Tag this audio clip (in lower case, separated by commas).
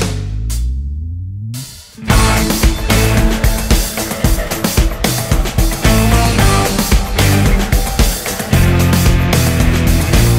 music, rhythm and blues, jazz, dance music